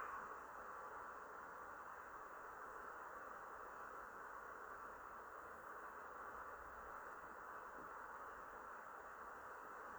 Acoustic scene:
elevator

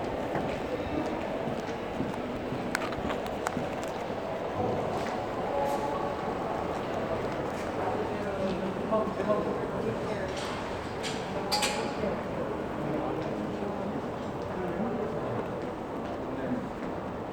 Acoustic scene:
crowded indoor space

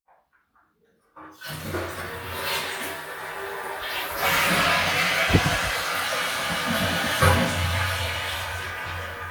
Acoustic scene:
restroom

